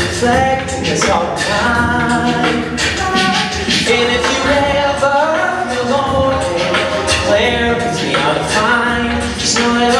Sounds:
music

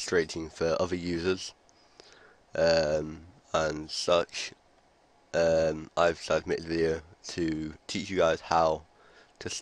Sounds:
speech

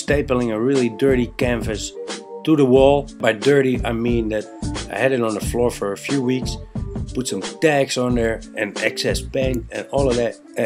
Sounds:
music, speech

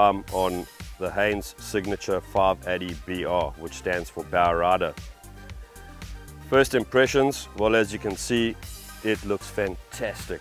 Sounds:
music, speech

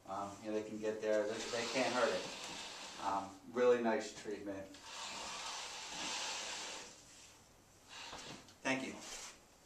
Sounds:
speech

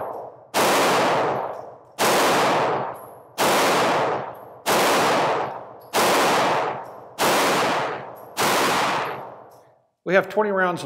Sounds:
inside a small room

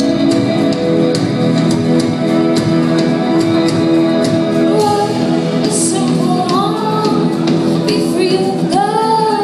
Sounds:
independent music, music

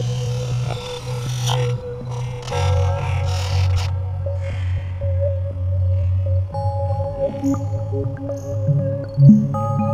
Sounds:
synthesizer

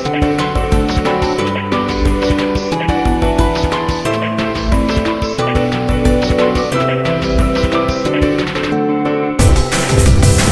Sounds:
music

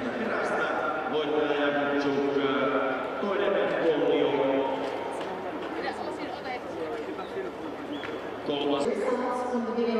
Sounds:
speech, outside, urban or man-made

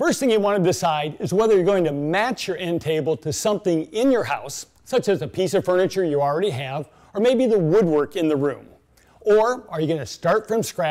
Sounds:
speech

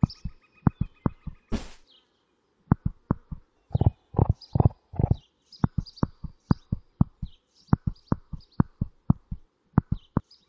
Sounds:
animal, horse

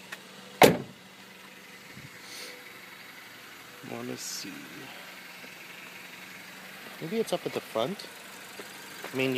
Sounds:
idling, vehicle

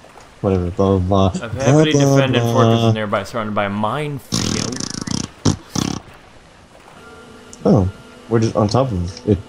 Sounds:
speech, outside, rural or natural

